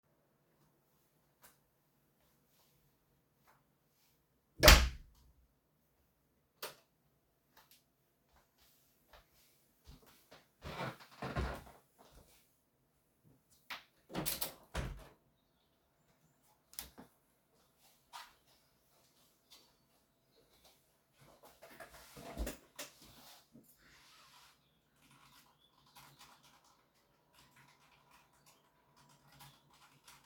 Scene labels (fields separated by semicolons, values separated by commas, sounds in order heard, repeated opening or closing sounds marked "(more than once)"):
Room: living room, office; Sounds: door, light switch, footsteps, window, keyboard typing